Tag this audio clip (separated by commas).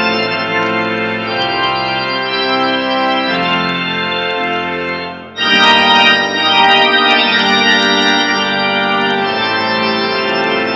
Piano, Musical instrument, Organ, Music, Keyboard (musical)